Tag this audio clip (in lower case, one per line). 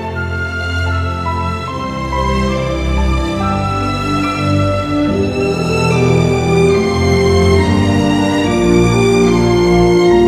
music